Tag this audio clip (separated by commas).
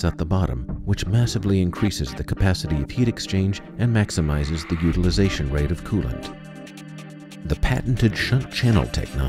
Speech, Music